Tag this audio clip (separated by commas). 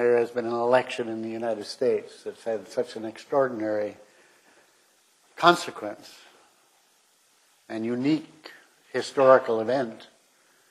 Speech